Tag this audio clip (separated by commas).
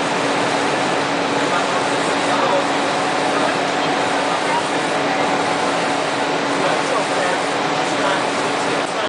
Spray, Speech